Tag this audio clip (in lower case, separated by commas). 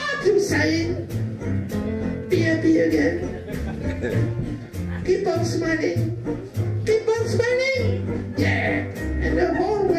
jazz, brass instrument, music, country, speech, musical instrument